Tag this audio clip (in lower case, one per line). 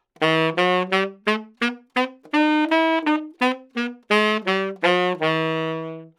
wind instrument
musical instrument
music